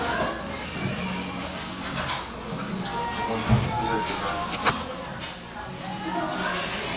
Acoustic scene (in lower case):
crowded indoor space